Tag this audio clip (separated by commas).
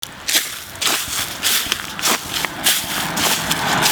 Walk